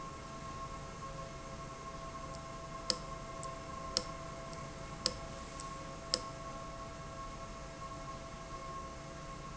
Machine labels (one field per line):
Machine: valve